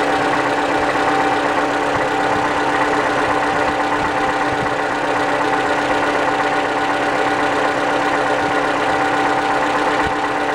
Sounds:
car engine knocking

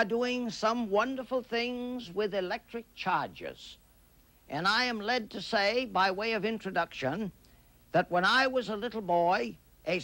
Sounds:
Speech

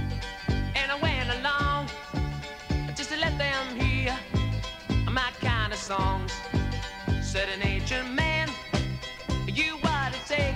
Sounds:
Rock and roll, Music

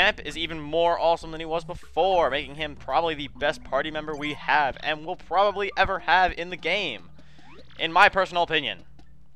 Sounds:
Speech, Music

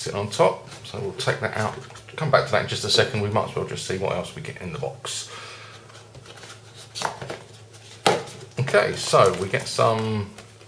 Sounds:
Speech

